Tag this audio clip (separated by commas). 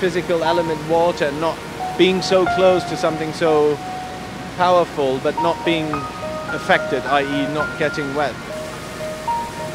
Music, Speech